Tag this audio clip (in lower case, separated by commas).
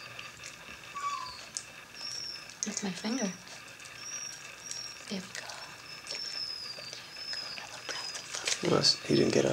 animal, pets, speech, dog